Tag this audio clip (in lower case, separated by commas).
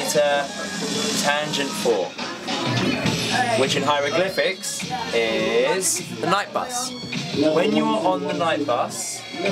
speech, music